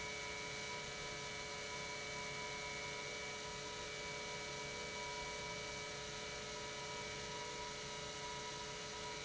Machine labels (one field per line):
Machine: pump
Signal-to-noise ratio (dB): 6 dB